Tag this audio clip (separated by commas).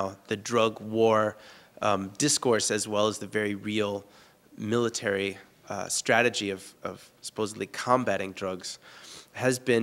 Speech